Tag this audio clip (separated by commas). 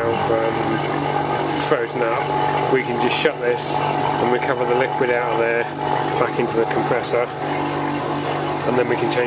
Speech